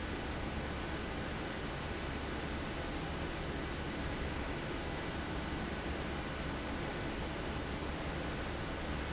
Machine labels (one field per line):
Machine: fan